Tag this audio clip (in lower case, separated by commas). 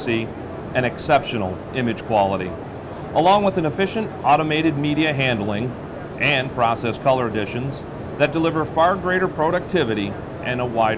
speech